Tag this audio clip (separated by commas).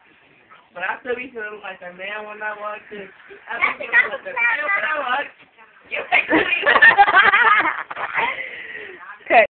Speech